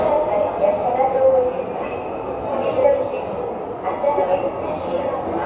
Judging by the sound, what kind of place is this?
subway station